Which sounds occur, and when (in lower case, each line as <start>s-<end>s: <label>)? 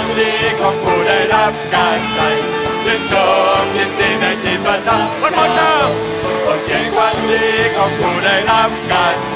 0.0s-2.5s: choir
0.0s-9.3s: music
2.8s-6.3s: choir
5.2s-5.9s: male speech
6.4s-9.3s: choir